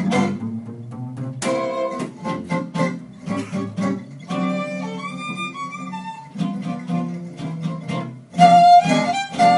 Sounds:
Bowed string instrument, fiddle, Music, Swing music, Guitar

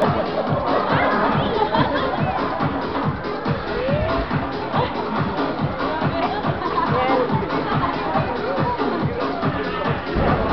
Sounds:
Crowd, Music, Speech

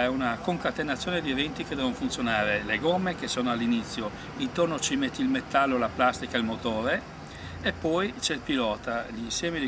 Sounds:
Speech

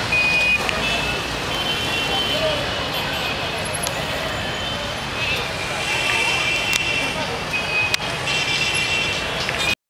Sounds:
Speech

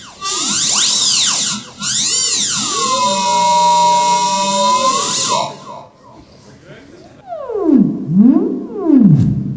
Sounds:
Speech, Music

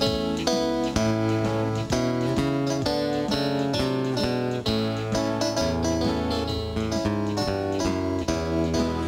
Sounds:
Country, Music

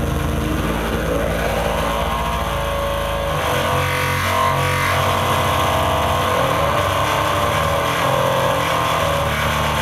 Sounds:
Race car

